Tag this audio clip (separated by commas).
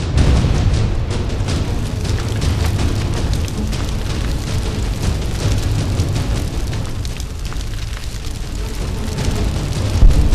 Music